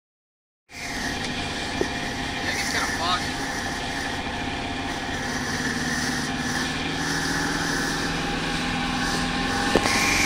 An engine running consistently with brief male speech